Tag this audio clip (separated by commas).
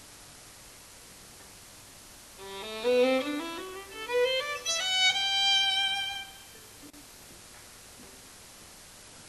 Music, Musical instrument, Violin